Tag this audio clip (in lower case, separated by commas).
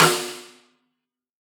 drum, snare drum, musical instrument, music, percussion